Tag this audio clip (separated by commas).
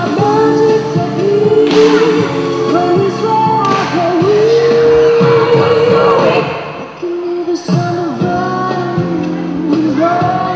Music